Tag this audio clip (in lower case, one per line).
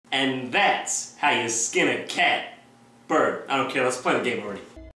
speech